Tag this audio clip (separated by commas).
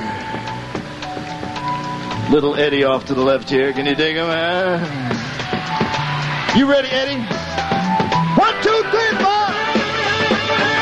Speech, Music